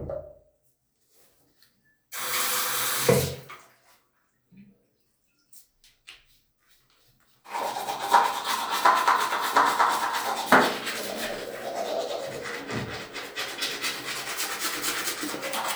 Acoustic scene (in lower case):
restroom